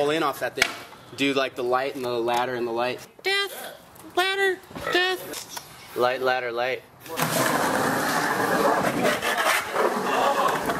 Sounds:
Speech, outside, urban or man-made

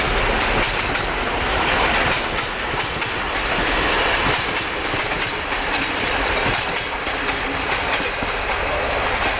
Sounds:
Vehicle, train wagon, Train, Rail transport

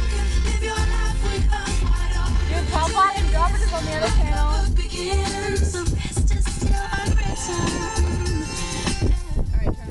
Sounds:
Music, Speech, Female singing

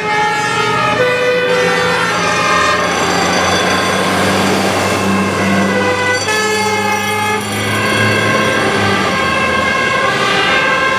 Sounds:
Emergency vehicle, Truck, fire truck (siren), Vehicle

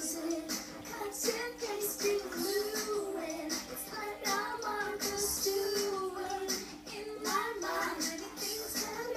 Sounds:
Music, Child singing

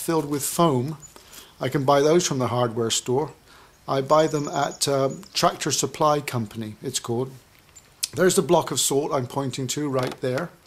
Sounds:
Speech

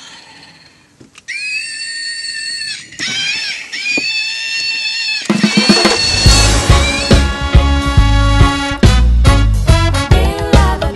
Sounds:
Music, Reggae

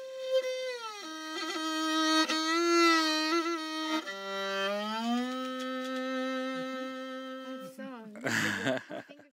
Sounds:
Violin, Bowed string instrument

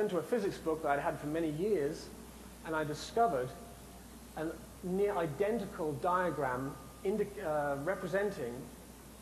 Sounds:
Speech

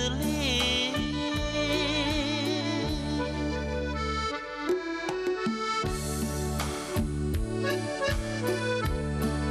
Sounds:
Accordion

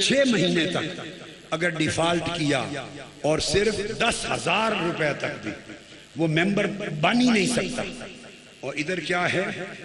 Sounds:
Narration, Speech, Male speech

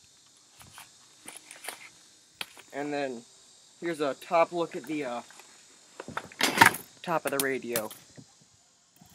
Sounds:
outside, rural or natural, Speech

